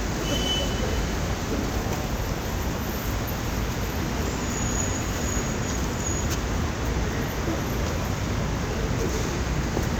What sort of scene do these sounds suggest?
street